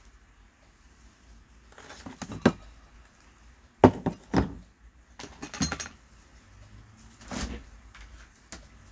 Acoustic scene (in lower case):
kitchen